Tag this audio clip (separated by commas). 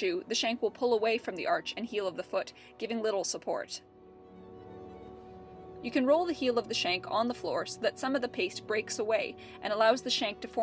Music, Speech